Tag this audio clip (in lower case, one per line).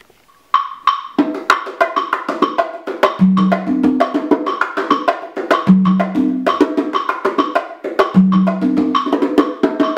playing congas